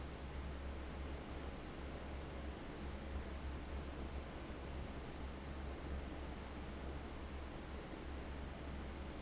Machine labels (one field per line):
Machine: fan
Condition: abnormal